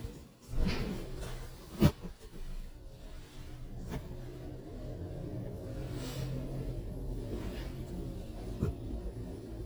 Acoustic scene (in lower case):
elevator